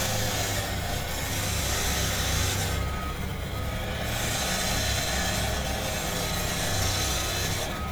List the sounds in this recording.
unidentified impact machinery